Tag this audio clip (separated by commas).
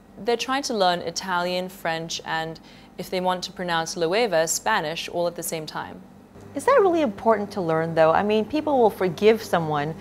Speech, inside a small room